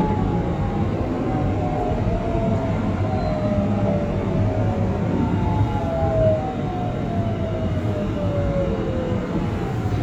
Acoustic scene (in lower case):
subway train